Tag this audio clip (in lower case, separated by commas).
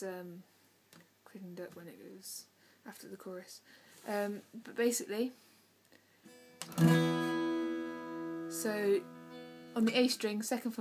musical instrument, guitar, speech, strum, plucked string instrument, music